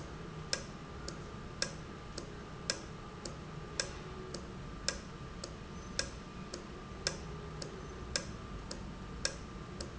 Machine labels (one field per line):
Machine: valve